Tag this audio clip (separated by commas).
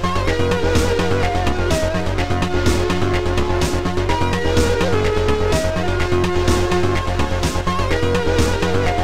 Music